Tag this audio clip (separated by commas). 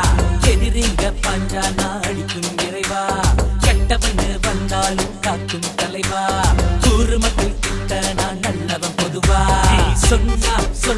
Music, Dance music